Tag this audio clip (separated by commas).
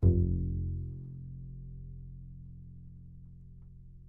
Musical instrument, Bowed string instrument, Music